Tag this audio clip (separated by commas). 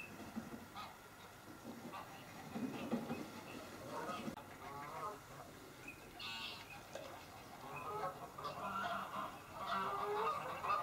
Bird, Duck